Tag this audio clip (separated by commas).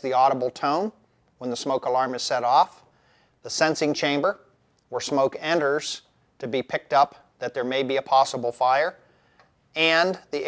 Speech